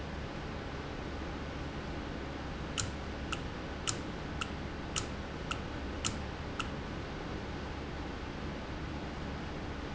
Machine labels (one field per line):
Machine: valve